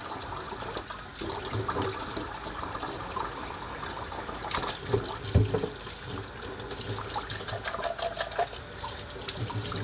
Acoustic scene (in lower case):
kitchen